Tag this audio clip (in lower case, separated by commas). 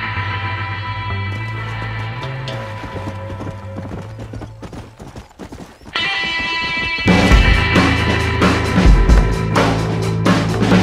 animal, clip-clop, music